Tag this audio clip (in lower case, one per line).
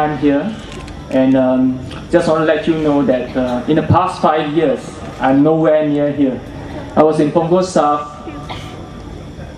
speech
narration
male speech